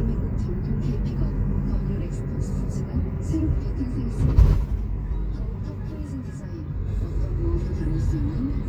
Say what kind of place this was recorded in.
car